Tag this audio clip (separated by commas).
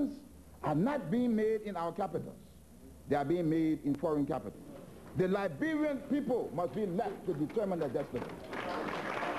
Speech, Male speech